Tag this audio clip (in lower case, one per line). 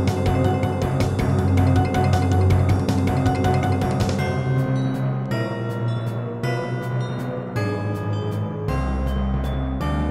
glockenspiel
mallet percussion
xylophone